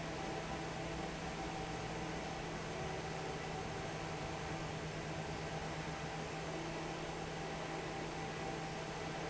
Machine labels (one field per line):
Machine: fan